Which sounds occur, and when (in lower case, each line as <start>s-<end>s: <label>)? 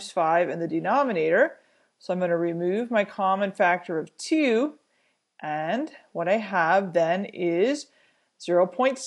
0.0s-1.5s: woman speaking
1.9s-4.7s: woman speaking
5.4s-7.9s: woman speaking
8.4s-9.0s: woman speaking